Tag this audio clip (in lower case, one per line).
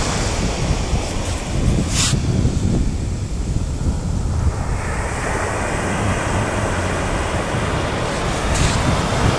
white noise